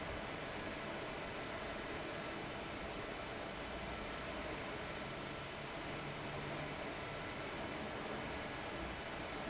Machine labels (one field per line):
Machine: fan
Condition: abnormal